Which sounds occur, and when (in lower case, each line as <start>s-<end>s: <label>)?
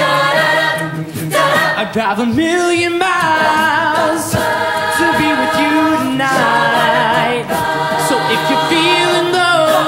0.0s-1.0s: choir
0.0s-9.8s: music
1.3s-1.9s: choir
1.7s-4.4s: male singing
3.1s-9.8s: choir
4.8s-7.4s: male singing
8.0s-9.8s: male singing